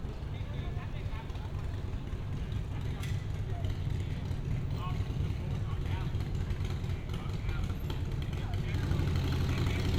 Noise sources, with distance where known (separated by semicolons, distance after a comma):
engine of unclear size, near; unidentified human voice, far